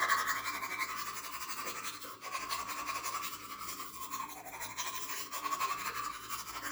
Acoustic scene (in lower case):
restroom